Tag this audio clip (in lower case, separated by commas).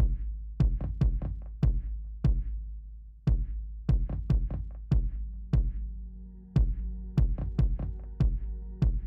sampler, music, sound effect